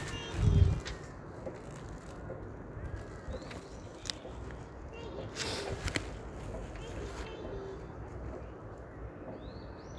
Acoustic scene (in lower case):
park